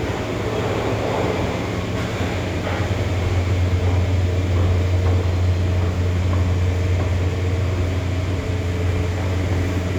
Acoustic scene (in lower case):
subway station